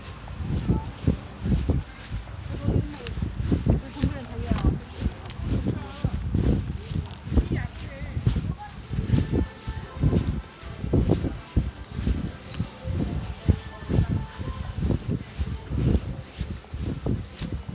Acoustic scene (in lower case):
residential area